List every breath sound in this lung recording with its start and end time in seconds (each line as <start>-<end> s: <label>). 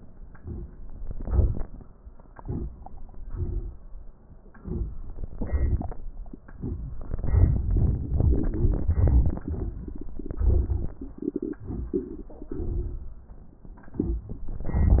0.34-0.74 s: inhalation
1.05-1.63 s: exhalation
2.36-2.73 s: inhalation
3.23-3.77 s: exhalation
4.52-4.97 s: inhalation
5.33-6.06 s: exhalation